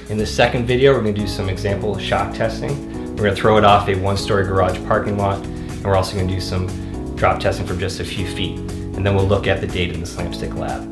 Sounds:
speech
music

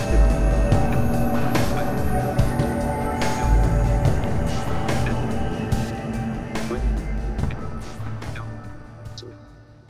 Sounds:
speech
music

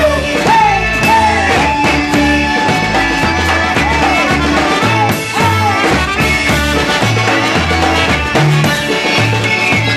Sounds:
music

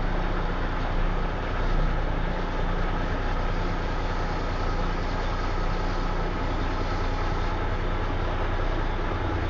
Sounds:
vehicle
truck

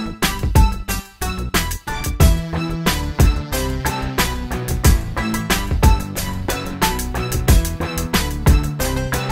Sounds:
music

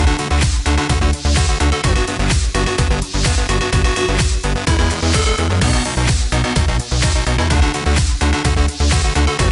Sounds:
music

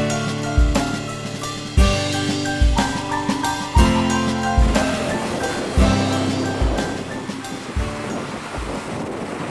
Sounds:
inside a small room
music

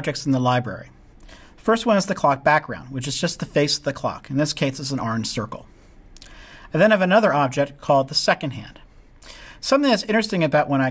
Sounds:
speech

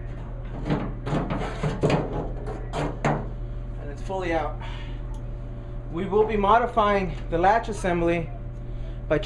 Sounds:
speech

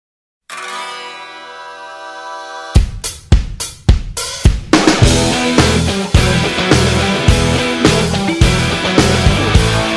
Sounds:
zither

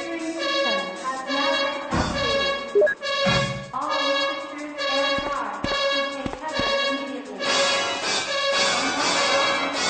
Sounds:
music
speech
run

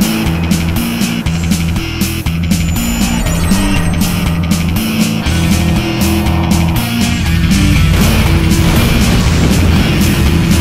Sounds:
music

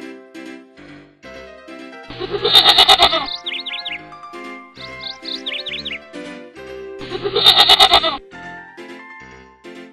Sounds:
music

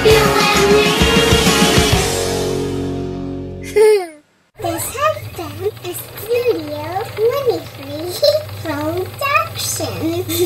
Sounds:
music
speech

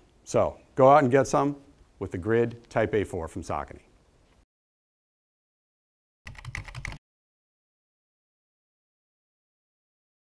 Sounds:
typing
speech
computer keyboard

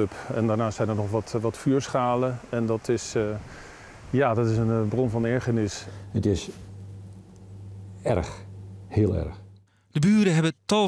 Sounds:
speech

